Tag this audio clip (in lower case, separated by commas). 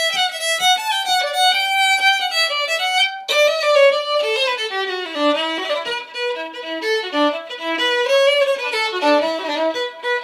musical instrument, music, fiddle